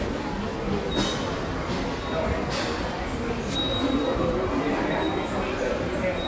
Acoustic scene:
subway station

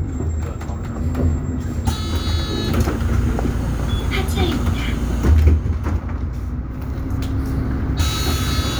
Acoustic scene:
bus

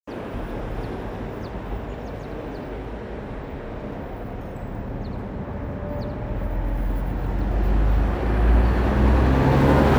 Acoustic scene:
street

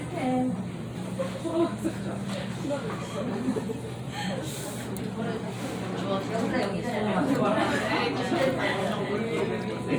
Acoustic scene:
restaurant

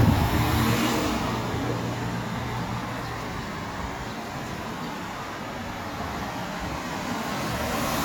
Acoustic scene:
street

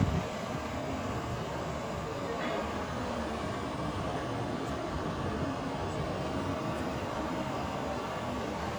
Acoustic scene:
street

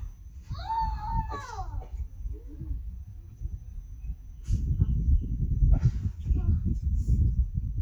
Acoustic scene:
park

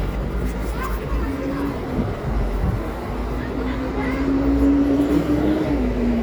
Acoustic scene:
residential area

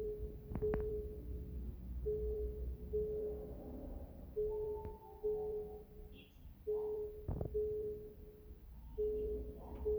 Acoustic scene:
elevator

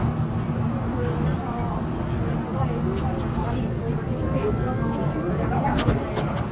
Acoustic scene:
subway train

